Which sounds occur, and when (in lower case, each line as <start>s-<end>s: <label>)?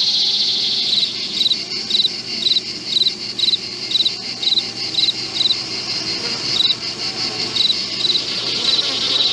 0.0s-9.3s: insect
0.0s-9.3s: wind
0.9s-1.1s: cricket
1.4s-1.5s: cricket
1.9s-2.2s: cricket
2.4s-2.6s: cricket
2.9s-3.1s: cricket
3.4s-3.6s: cricket
3.9s-4.1s: cricket
4.4s-4.7s: cricket
4.9s-5.1s: cricket
5.4s-5.6s: cricket
6.6s-6.7s: cricket
7.5s-7.8s: cricket
8.0s-8.2s: cricket
8.6s-8.8s: cricket